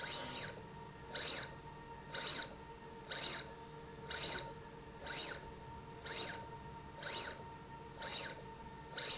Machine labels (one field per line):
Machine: slide rail